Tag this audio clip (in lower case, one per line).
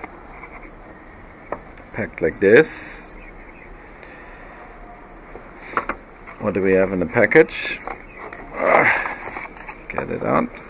speech